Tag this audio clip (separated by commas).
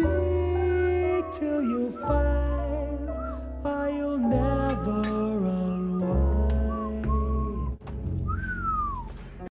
Music